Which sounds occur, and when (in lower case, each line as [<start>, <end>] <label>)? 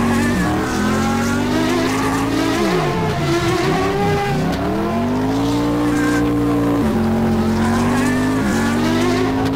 [0.00, 4.47] revving
[0.00, 9.55] race car
[0.00, 9.55] video game sound
[4.49, 4.58] generic impact sounds
[4.66, 6.93] revving
[7.29, 9.44] revving
[9.44, 9.55] generic impact sounds